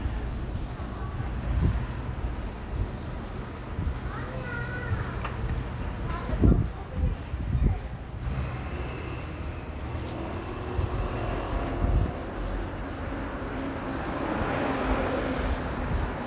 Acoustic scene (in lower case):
street